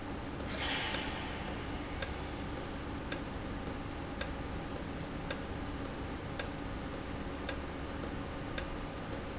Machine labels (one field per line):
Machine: valve